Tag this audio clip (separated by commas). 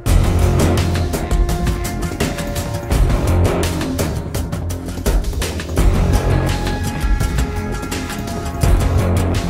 Music, Scary music